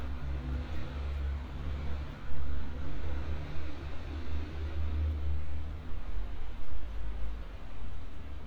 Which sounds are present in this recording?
engine of unclear size